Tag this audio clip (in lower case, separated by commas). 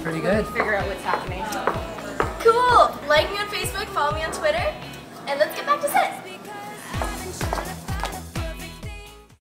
speech, music